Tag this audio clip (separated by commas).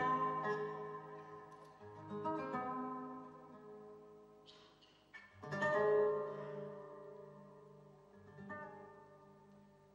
Guitar, Music, Musical instrument